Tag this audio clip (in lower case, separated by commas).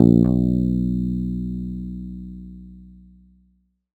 guitar, bass guitar, plucked string instrument, musical instrument, music